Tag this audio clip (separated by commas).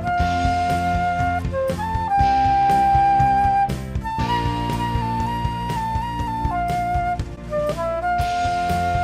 playing flute